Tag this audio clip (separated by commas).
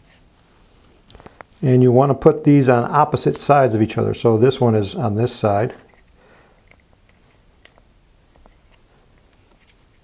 inside a small room, Speech